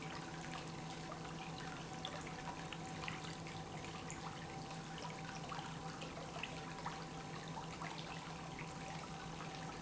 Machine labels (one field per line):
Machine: pump